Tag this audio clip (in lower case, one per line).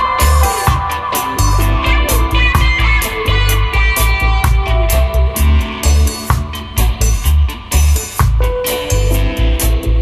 music